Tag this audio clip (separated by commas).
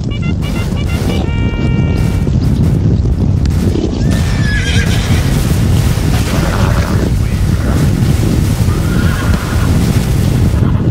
Sound effect, Rumble